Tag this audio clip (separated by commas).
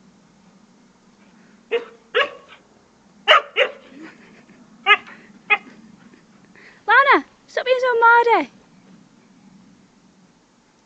Dog, Animal, pets, Speech